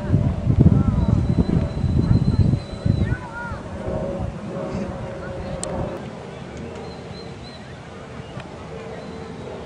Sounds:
Speech

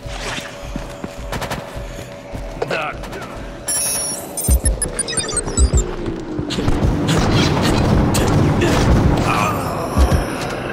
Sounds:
Speech, Boom

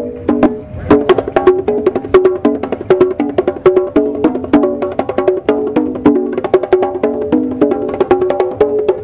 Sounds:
playing congas

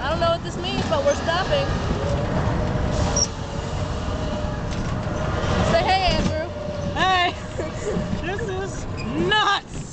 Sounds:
Speech

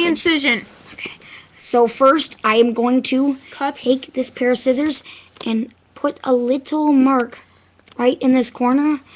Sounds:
Speech

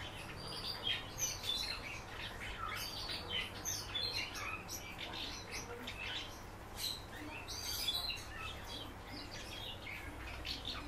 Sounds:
barn swallow calling

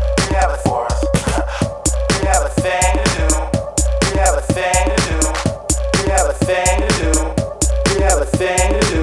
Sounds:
Music

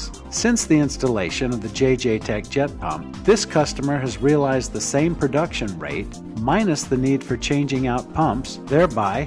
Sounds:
Speech, Music

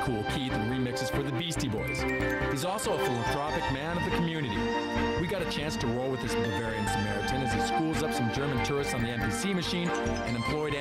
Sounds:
Speech, Music

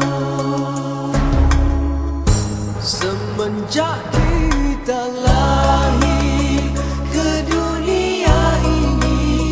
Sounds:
Music

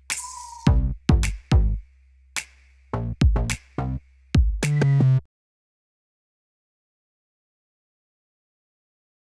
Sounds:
Music

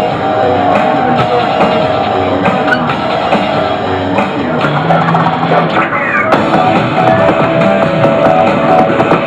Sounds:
Music

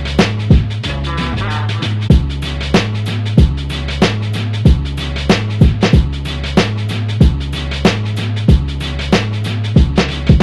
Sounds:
Music

